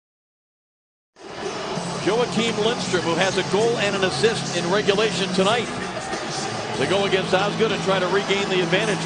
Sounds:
Music, Speech

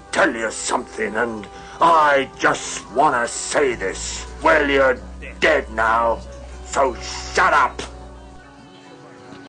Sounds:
Speech, Music

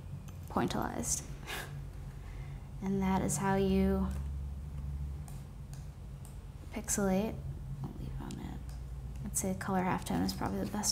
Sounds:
inside a small room, Speech

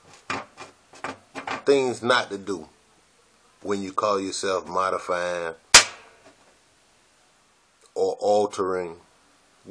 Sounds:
Speech

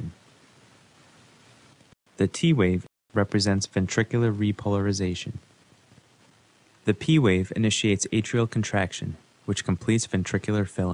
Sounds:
Speech

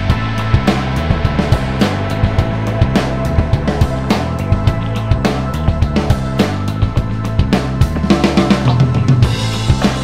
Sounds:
Music

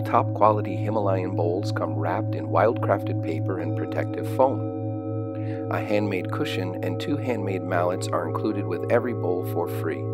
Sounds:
Music, Speech

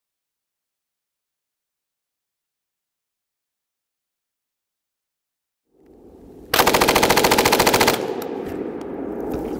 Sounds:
machine gun shooting

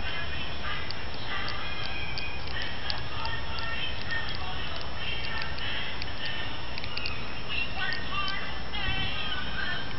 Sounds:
Music, Christmas music

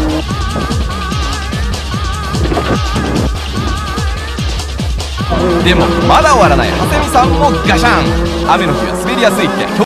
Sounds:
Music, Speech

